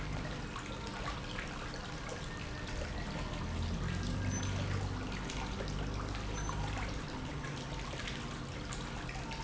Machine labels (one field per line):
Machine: pump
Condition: normal